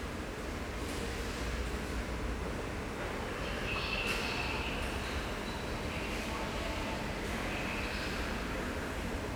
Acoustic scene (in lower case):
subway station